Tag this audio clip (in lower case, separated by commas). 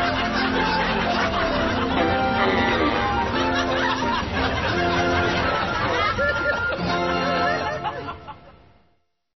laughter, fart